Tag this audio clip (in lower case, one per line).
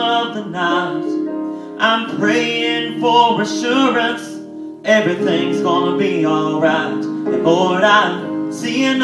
music
male singing